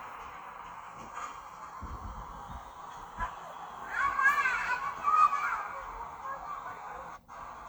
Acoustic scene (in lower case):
park